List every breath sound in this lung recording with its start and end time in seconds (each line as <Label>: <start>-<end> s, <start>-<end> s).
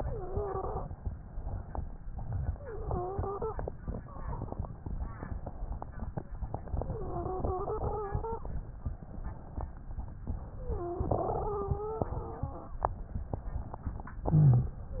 Inhalation: 0.93-2.35 s, 4.96-6.20 s, 8.45-10.10 s, 14.23-14.80 s
Exhalation: 0.00-0.84 s, 2.41-3.66 s, 6.50-8.52 s, 10.24-12.99 s, 14.87-15.00 s
Wheeze: 0.00-0.84 s, 2.41-3.66 s, 6.81-8.46 s, 10.57-12.87 s, 14.87-15.00 s